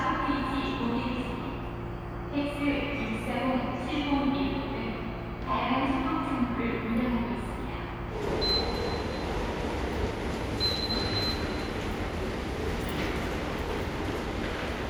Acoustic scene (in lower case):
subway station